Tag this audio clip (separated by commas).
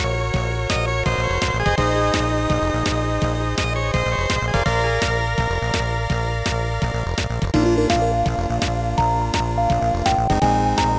Music